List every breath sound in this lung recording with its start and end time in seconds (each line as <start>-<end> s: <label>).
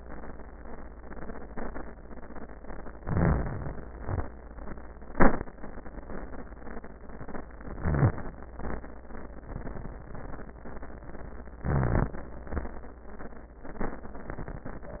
2.94-3.89 s: crackles
2.96-3.93 s: inhalation
3.90-4.51 s: exhalation
3.90-4.51 s: crackles
7.60-8.50 s: inhalation
7.62-8.48 s: crackles
8.50-9.14 s: exhalation
8.50-9.14 s: crackles
11.50-12.37 s: inhalation
11.50-12.37 s: crackles
12.43-12.93 s: exhalation
12.43-12.93 s: crackles